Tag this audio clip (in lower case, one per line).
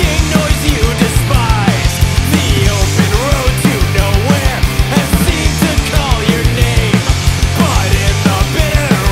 music